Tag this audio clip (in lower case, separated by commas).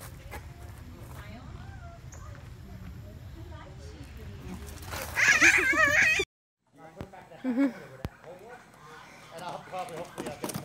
goat bleating